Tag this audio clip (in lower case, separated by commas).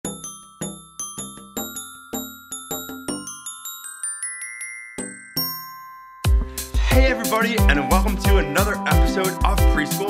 marimba, glockenspiel, mallet percussion